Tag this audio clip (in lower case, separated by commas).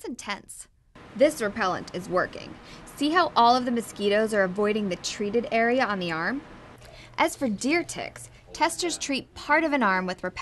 speech